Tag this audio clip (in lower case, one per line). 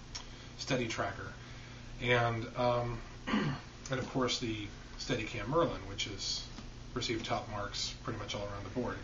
speech